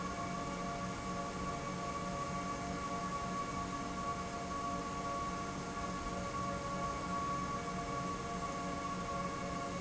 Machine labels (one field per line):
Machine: pump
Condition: normal